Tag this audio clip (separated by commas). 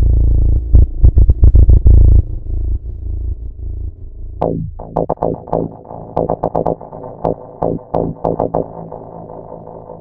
Didgeridoo, inside a small room, Musical instrument, Music